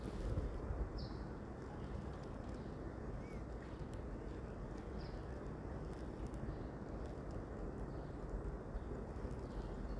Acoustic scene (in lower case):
residential area